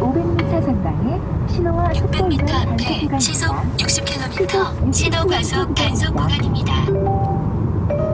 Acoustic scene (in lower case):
car